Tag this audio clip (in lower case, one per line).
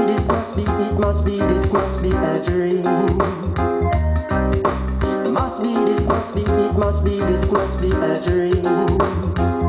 music